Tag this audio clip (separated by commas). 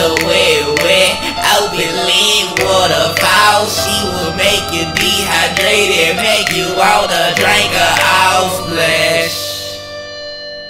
Music